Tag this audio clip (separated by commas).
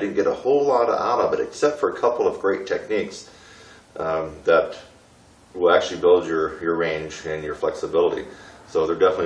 Speech